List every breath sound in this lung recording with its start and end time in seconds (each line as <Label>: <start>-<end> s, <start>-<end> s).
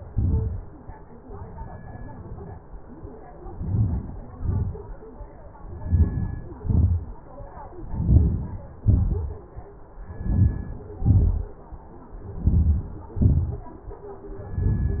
Inhalation: 3.30-4.29 s, 5.56-6.58 s, 7.59-8.63 s, 10.02-11.08 s, 12.14-13.17 s, 14.23-14.94 s
Exhalation: 4.29-4.86 s, 6.60-7.36 s, 8.65-9.22 s, 11.12-11.73 s, 13.21-13.76 s